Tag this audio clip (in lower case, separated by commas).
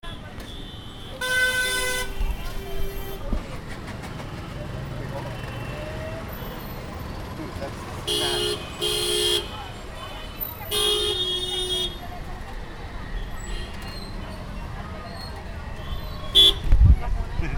speech, human group actions, engine starting, engine, motor vehicle (road), vehicle, chatter, human voice, laughter, car, roadway noise, male speech, alarm, vehicle horn